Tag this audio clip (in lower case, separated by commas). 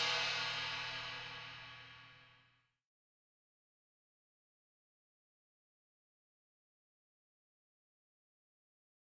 music